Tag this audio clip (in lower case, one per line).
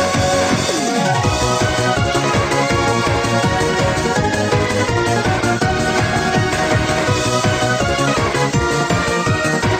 music